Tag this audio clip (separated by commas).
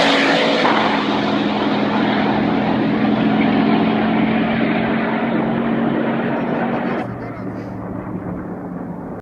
Speech, Motor vehicle (road), Vehicle